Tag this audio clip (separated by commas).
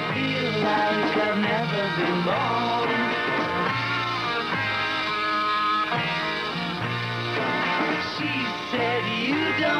Rock music, Psychedelic rock, Singing, Song, Music